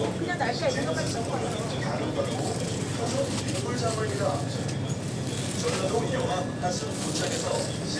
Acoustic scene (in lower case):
crowded indoor space